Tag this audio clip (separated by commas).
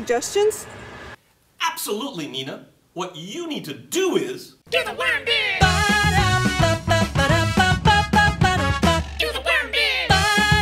Speech, Music